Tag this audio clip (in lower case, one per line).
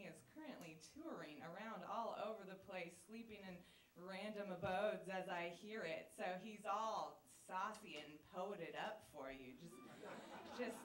speech